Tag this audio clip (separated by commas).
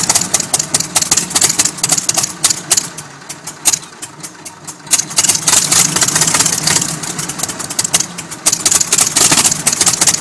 Engine, Vehicle